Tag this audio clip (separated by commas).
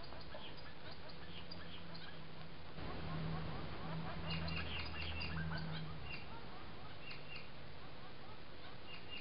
Animal, Bird